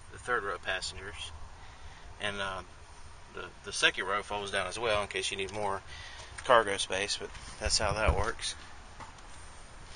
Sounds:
Speech

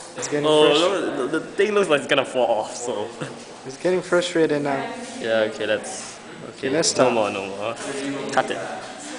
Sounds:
Speech

